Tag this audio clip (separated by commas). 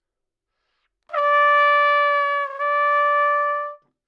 Trumpet, Musical instrument, Music, Brass instrument